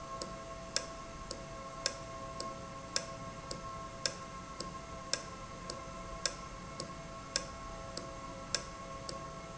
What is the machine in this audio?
valve